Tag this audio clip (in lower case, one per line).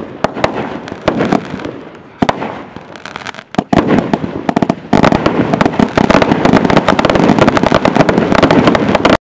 firecracker